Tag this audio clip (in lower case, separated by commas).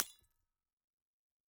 shatter, glass